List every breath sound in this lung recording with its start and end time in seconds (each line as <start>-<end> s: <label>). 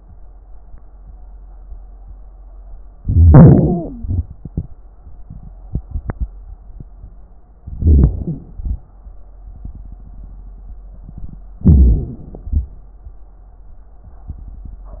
3.04-3.99 s: inhalation
3.04-3.99 s: wheeze
3.97-4.25 s: exhalation
7.63-8.23 s: inhalation
7.63-8.23 s: crackles
8.22-8.55 s: exhalation
11.61-12.42 s: inhalation
12.45-12.74 s: exhalation